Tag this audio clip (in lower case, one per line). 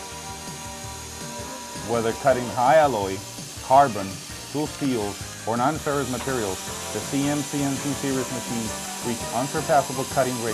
sawing